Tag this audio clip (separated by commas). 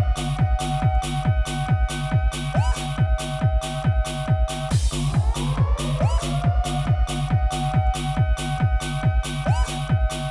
Bass drum, Musical instrument, Drum kit, Music, Drum